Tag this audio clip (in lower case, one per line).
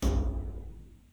thump